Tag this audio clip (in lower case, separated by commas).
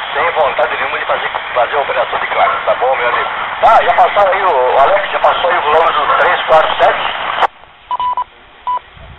radio, speech